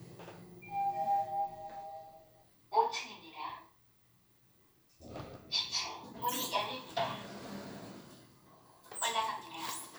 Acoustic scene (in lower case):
elevator